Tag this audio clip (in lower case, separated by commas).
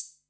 musical instrument, percussion, music, cymbal, hi-hat